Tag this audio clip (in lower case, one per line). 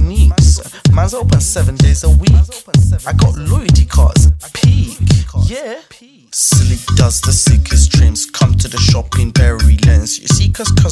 music